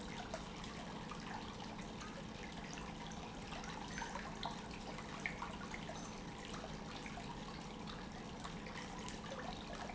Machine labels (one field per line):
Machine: pump